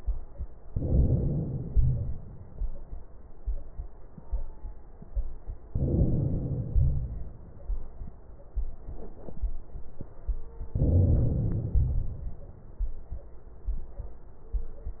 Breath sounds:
0.68-1.73 s: inhalation
1.75-2.68 s: exhalation
5.68-6.72 s: inhalation
6.75-7.67 s: exhalation
10.73-11.72 s: inhalation
11.74-12.67 s: exhalation

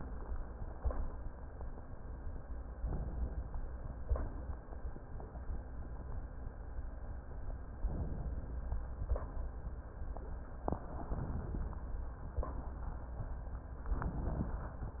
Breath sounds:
2.79-3.76 s: inhalation
7.80-8.77 s: inhalation
10.93-11.90 s: inhalation
13.91-14.88 s: inhalation

